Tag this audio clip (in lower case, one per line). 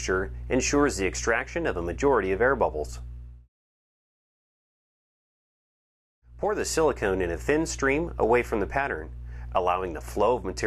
speech
inside a small room